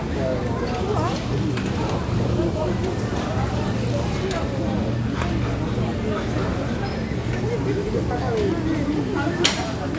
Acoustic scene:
crowded indoor space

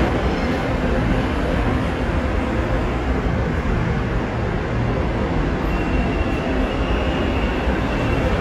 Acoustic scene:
subway station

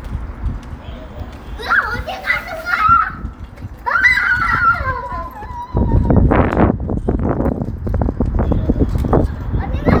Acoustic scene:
residential area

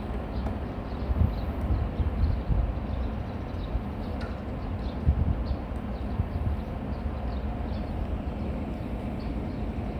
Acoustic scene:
residential area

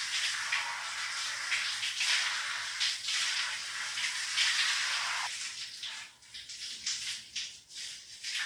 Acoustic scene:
restroom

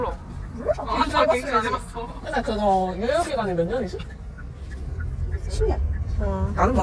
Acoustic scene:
car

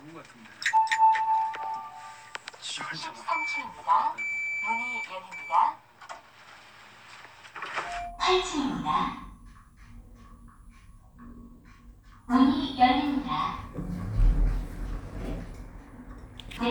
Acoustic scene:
elevator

